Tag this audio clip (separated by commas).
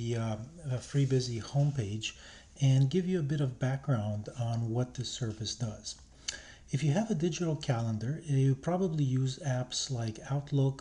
Speech